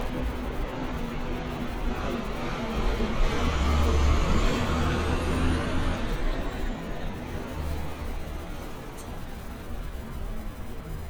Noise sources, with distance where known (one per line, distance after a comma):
large-sounding engine, near